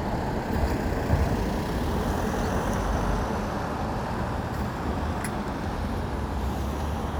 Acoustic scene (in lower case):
street